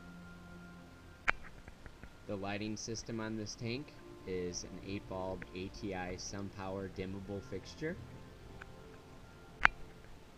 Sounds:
speech, inside a small room, music

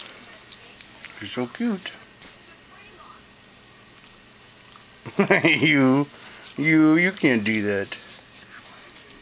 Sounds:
domestic animals, animal, speech, dog

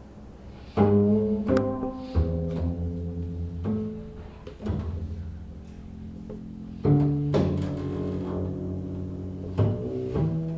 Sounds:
pizzicato, music, musical instrument

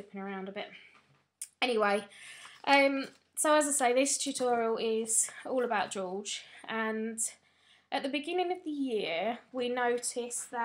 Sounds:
speech

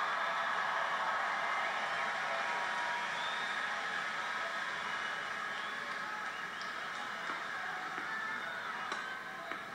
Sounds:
thwack

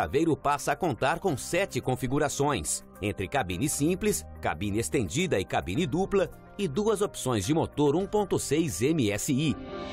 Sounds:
music, speech

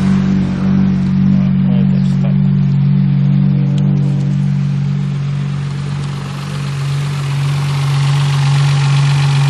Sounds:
medium engine (mid frequency), car, vehicle, idling, engine

